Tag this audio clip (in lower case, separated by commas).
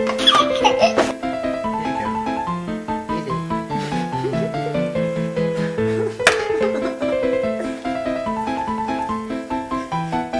piano, keyboard (musical)